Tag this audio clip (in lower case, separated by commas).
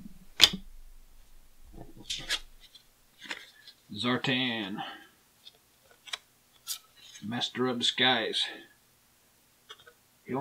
speech, inside a small room